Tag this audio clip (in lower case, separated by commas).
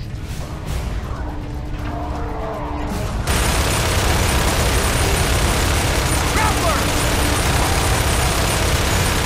speech